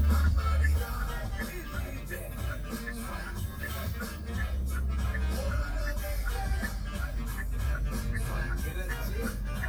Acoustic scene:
car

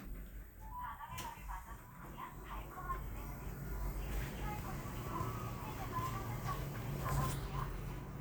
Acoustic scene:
elevator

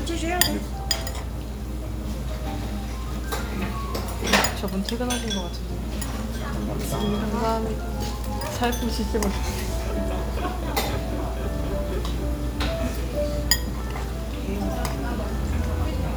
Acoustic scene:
restaurant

